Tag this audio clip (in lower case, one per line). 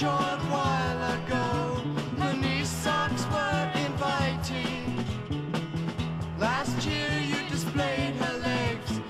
music